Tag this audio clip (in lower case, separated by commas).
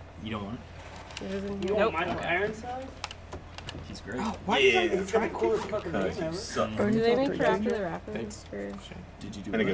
speech